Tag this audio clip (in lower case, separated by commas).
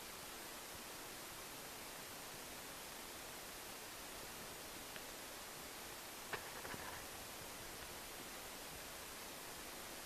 silence